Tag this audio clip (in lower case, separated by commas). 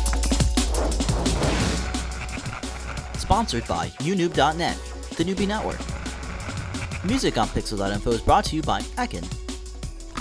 music, speech